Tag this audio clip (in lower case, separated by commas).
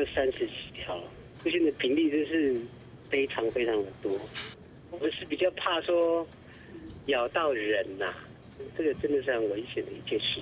speech, inside a small room